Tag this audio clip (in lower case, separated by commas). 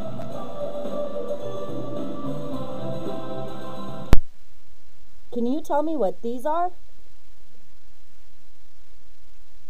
speech, music